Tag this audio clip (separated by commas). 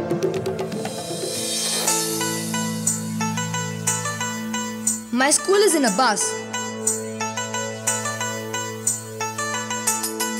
Speech, Music